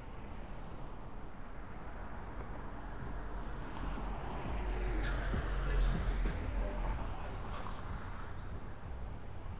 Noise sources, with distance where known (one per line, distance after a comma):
music from a moving source, far